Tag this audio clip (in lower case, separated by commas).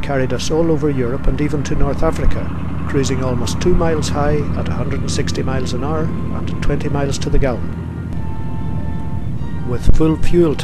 music, speech